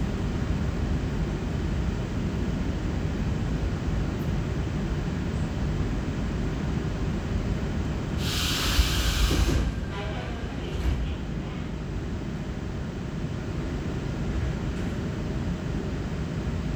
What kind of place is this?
subway train